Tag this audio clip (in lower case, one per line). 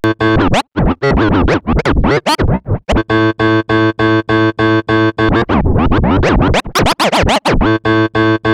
musical instrument
music
scratching (performance technique)